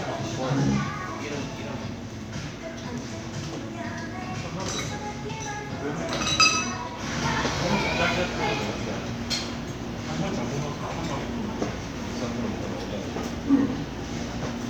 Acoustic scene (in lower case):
crowded indoor space